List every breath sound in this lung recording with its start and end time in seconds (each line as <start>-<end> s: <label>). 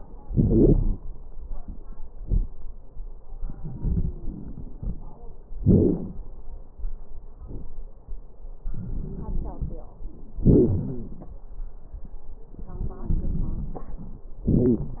0.24-1.02 s: inhalation
0.24-1.02 s: wheeze
3.55-5.17 s: inhalation
3.60-5.18 s: wheeze
5.60-6.24 s: inhalation
5.60-6.24 s: crackles
8.63-9.88 s: inhalation
9.01-10.07 s: wheeze
10.46-11.38 s: exhalation
10.46-11.38 s: wheeze
12.62-14.02 s: wheeze
12.62-14.30 s: inhalation
14.51-15.00 s: exhalation
14.51-15.00 s: wheeze